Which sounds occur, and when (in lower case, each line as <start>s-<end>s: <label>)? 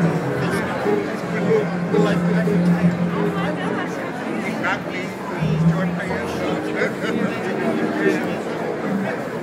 0.0s-9.4s: background noise
0.0s-9.4s: speech babble
0.0s-9.4s: music
0.3s-2.4s: man speaking
2.6s-3.0s: man speaking
3.1s-4.3s: female speech
4.4s-6.7s: man speaking
6.7s-7.8s: laughter
8.0s-8.2s: man speaking
8.7s-9.4s: man speaking